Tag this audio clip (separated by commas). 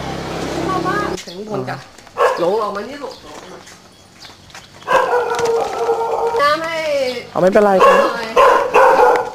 Speech, Bark, Animal